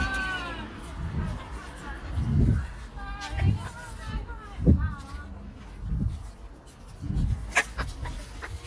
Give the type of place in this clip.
residential area